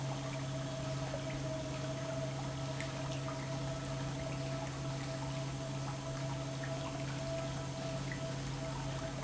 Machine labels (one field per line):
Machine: pump